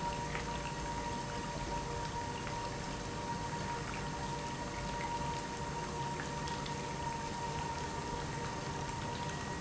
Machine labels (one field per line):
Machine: pump